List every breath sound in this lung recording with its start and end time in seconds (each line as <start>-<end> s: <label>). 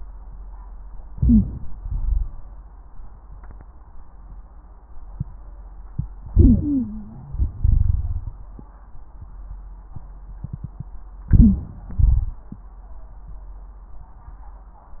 1.10-1.74 s: inhalation
1.10-1.74 s: wheeze
1.75-2.49 s: exhalation
1.75-2.49 s: crackles
6.27-7.36 s: inhalation
6.27-7.36 s: wheeze
7.44-8.52 s: exhalation
7.44-8.52 s: crackles
11.29-11.95 s: inhalation
11.29-11.95 s: wheeze
11.98-12.64 s: exhalation
11.98-12.64 s: crackles